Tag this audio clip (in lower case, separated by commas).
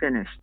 human voice, speech